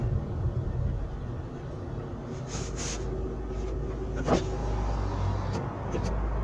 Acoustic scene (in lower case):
car